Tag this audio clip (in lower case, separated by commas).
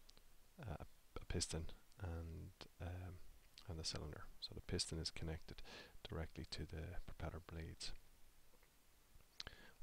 speech